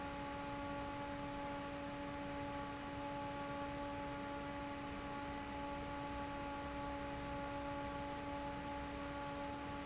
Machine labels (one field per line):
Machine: fan